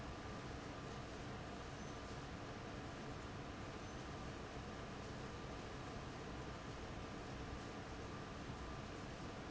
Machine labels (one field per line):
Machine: fan